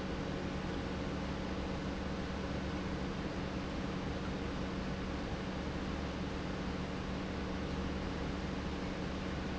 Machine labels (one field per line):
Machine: pump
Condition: normal